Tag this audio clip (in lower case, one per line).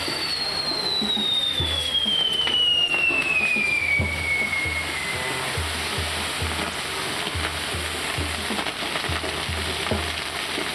fireworks
fireworks banging
music